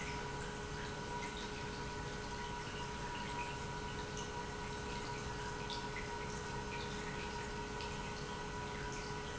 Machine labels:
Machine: pump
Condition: normal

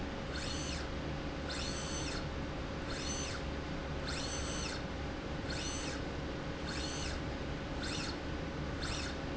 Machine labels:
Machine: slide rail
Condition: normal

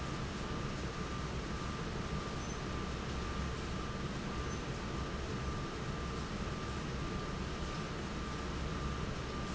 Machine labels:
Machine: fan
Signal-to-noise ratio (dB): -6 dB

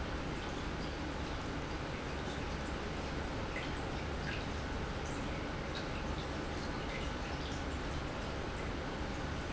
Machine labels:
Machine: pump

